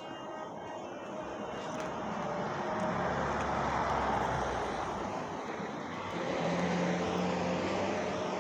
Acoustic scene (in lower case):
residential area